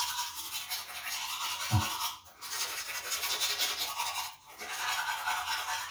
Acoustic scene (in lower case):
restroom